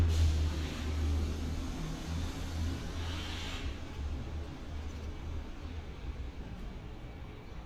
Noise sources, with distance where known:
large-sounding engine

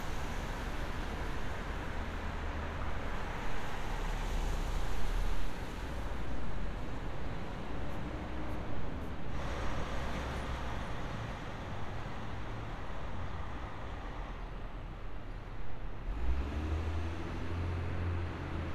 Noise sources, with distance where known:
medium-sounding engine

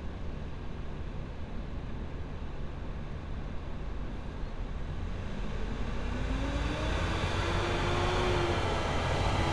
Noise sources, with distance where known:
large-sounding engine

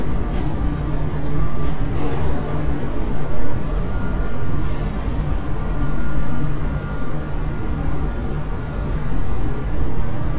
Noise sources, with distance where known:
unidentified alert signal

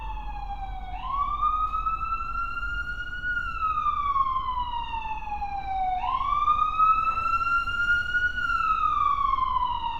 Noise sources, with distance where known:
siren, near

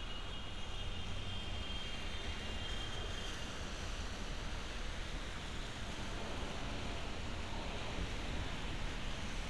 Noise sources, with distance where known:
car horn, far

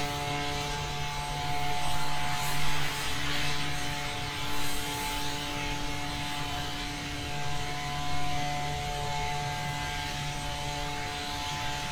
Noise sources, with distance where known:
unidentified powered saw

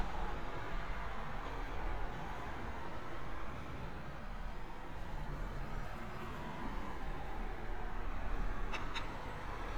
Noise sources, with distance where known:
background noise

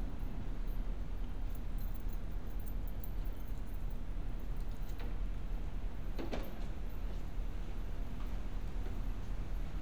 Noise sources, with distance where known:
background noise

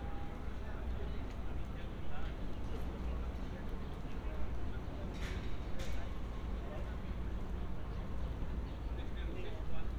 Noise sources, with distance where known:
person or small group talking

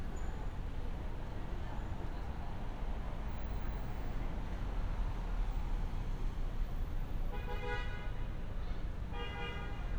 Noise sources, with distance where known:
car horn, near

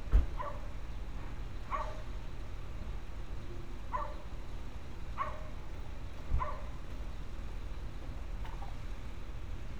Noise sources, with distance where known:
dog barking or whining, near

